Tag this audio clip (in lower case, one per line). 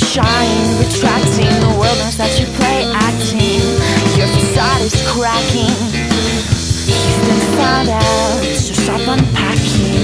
music